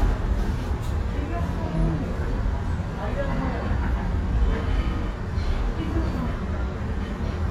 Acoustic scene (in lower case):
subway train